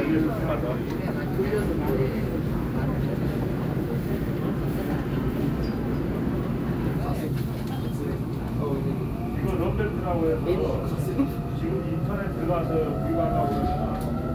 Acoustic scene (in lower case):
subway train